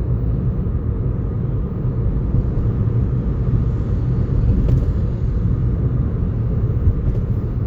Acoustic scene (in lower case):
car